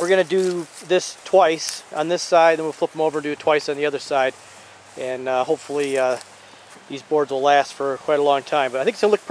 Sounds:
outside, rural or natural, speech

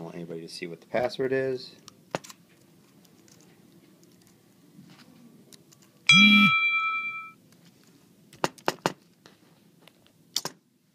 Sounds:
speech

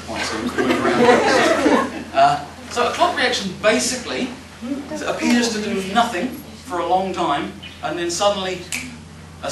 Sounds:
speech

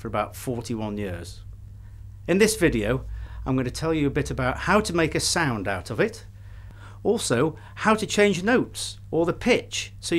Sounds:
speech

